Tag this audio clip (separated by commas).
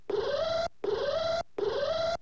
Alarm